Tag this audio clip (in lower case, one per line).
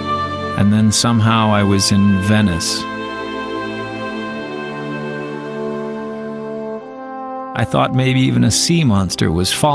speech
music